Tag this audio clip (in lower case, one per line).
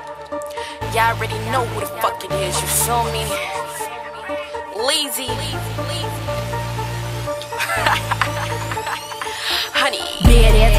music